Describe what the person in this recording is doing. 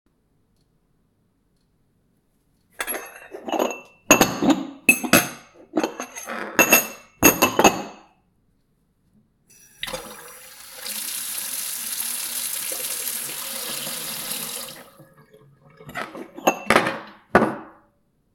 I did the dishes for a bit then I opened the faucet and let the water run. Afterwards I did the dishes again.